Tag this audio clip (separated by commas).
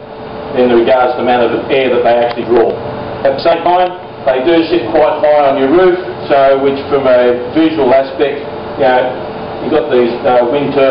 Speech